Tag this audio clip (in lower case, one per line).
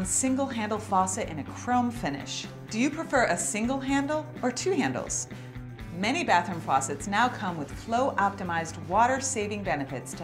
music
speech